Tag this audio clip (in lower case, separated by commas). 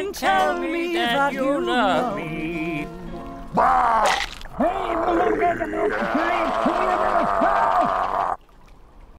music, male singing